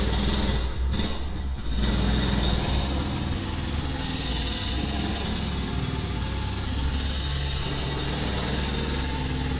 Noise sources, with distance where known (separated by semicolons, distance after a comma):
jackhammer, near